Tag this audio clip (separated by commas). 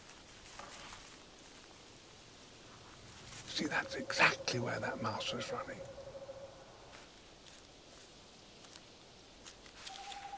Speech, Wild animals, Animal